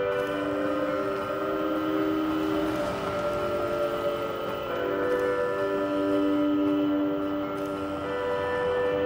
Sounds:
Music

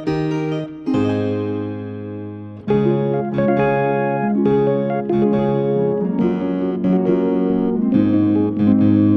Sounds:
Music

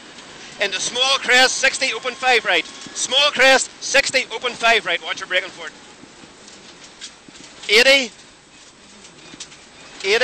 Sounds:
Vehicle, Car, Speech

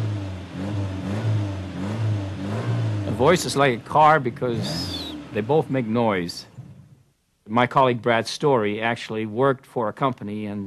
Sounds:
Speech, Vehicle, Car

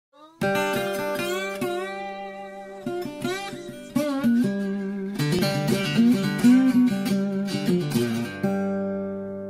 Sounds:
Music, Acoustic guitar

